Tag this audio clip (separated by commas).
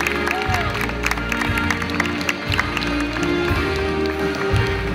Music